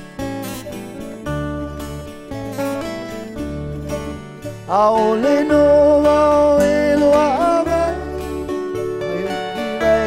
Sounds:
music

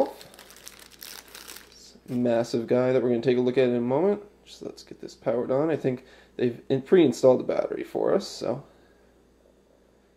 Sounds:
speech, crinkling

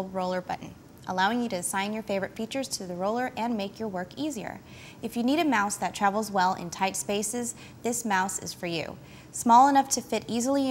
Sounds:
speech

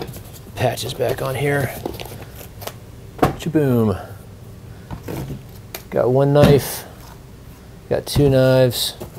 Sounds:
inside a small room, speech

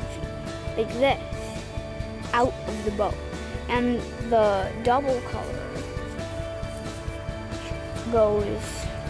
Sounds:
speech, music

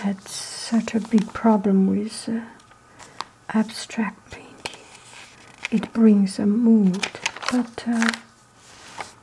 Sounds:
speech, inside a small room

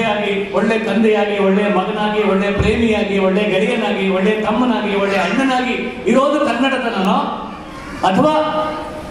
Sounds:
monologue, male speech, speech

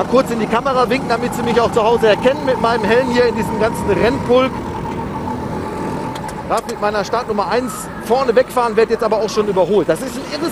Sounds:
speech

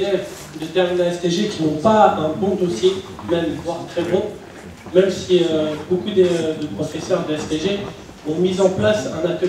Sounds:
speech

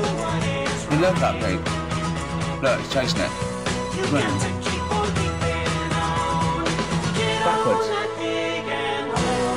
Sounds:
music, speech

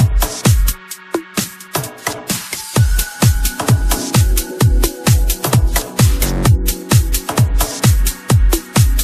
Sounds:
music, drum and bass

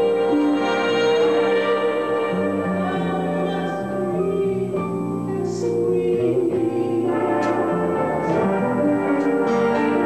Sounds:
jazz, music

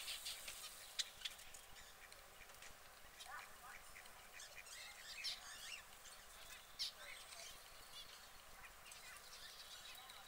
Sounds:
canary calling

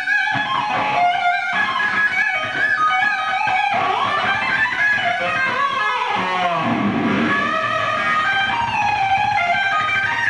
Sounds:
music

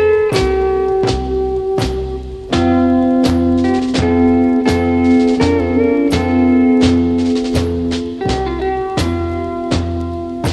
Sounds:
guitar, musical instrument, electric guitar, plucked string instrument, music

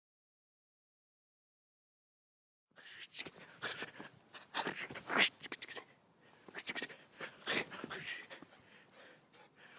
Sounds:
animal

